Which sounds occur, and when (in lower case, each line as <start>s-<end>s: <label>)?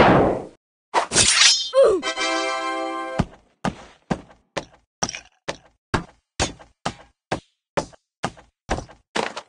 0.0s-0.5s: sound effect
0.9s-1.8s: music
1.7s-2.0s: human sounds
2.1s-3.2s: music
3.2s-3.4s: thump
3.7s-3.9s: thump
4.1s-4.4s: thump
4.6s-4.8s: thump
5.0s-5.3s: thump
5.5s-5.7s: thump
6.0s-6.2s: thump
6.4s-6.7s: thump
6.9s-7.1s: thump
7.3s-7.6s: thump
7.8s-8.0s: thump
8.2s-8.5s: thump
8.7s-9.0s: thump
9.1s-9.4s: thump